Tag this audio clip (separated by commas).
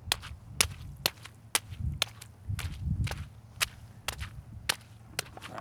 footsteps